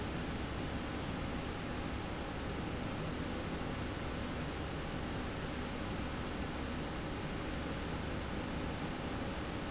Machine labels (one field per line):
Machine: slide rail